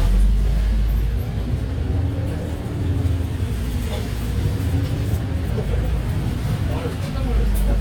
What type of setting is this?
bus